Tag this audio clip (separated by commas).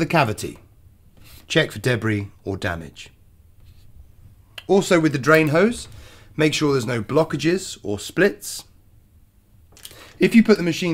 Speech